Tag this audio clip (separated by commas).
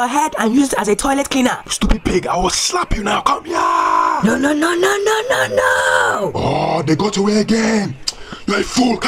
Speech